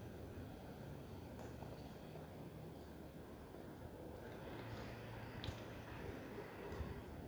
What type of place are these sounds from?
residential area